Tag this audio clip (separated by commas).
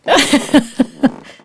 Giggle, Human voice, Laughter